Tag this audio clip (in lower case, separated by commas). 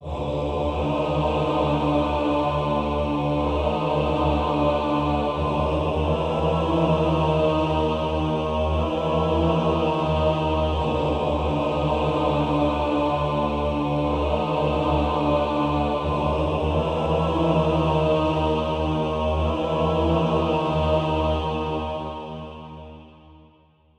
music, musical instrument, singing, human voice